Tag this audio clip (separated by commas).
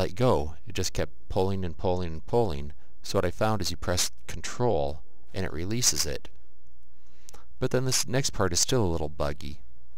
Speech